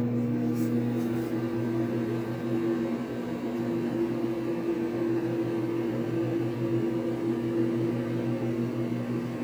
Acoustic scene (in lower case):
kitchen